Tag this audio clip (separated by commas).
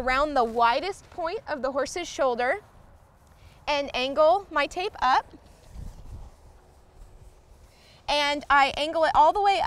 Speech